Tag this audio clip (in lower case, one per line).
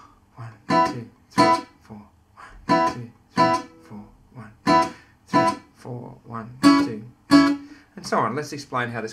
plucked string instrument
guitar
acoustic guitar
musical instrument
speech
music